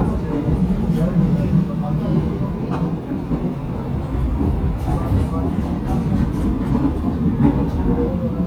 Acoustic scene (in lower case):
subway train